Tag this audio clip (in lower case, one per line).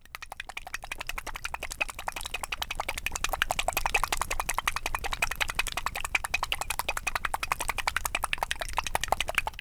liquid